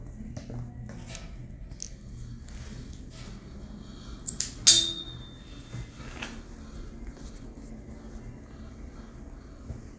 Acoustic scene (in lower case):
elevator